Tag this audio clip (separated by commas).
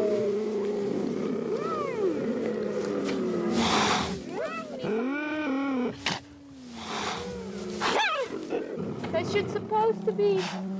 cheetah chirrup